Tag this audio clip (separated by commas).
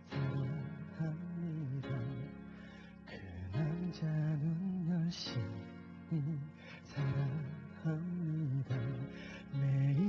Music, Male singing